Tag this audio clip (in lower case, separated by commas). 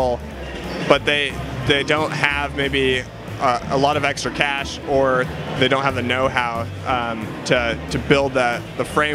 music, speech